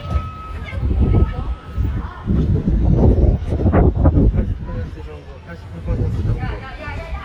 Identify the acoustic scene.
residential area